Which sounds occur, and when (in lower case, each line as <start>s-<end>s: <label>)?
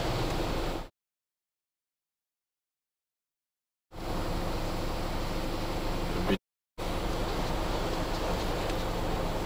0.0s-0.8s: roadway noise
0.0s-0.9s: water
0.2s-0.3s: tick
3.9s-6.4s: roadway noise
3.9s-6.4s: water
6.2s-6.4s: human voice
6.7s-9.4s: roadway noise
6.8s-9.4s: water